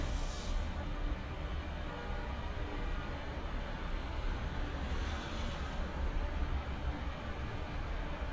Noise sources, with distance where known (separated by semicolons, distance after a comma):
car horn, far